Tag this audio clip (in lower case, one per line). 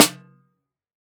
percussion
music
snare drum
musical instrument
drum